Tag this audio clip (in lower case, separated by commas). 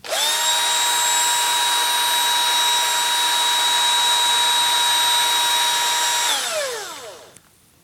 engine, power tool, tools, drill